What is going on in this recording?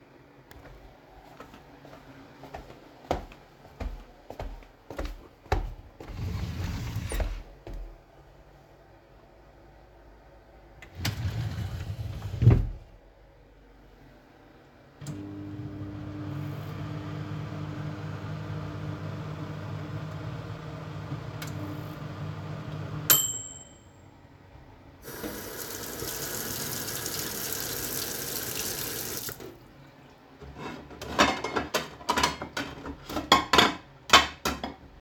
Footsteps entered the kitchen with a partial overlap of a drawer being opened. The drawer was then closed and the microwave was started. Later the tap was turned on and finally the sound of dishes was heard.